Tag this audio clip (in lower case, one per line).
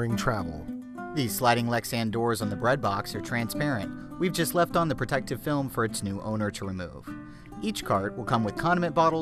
music
speech